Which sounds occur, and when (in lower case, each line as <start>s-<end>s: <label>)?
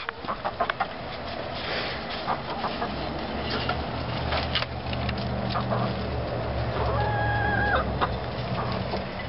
0.0s-9.2s: mechanisms
0.0s-0.1s: tick
0.2s-0.8s: cluck
0.6s-0.7s: tick
1.0s-3.1s: generic impact sounds
2.2s-2.9s: cluck
3.0s-3.1s: tick
3.4s-3.7s: cluck
3.6s-3.7s: tick
4.0s-4.6s: generic impact sounds
4.8s-5.3s: generic impact sounds
5.5s-5.9s: cluck
5.5s-6.1s: generic impact sounds
6.7s-7.8s: chicken
6.7s-7.1s: generic impact sounds
7.7s-9.0s: cluck
8.0s-9.0s: generic impact sounds